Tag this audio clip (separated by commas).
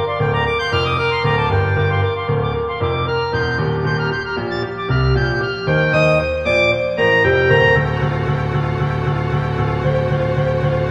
Music, Theme music